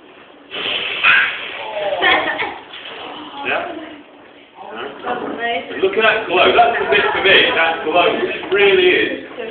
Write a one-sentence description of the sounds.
Something pops and then kids laugh and gasp followed by a man speaking